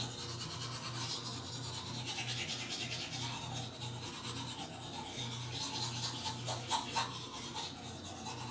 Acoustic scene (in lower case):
restroom